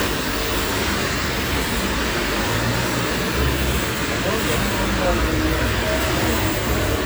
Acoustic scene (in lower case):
street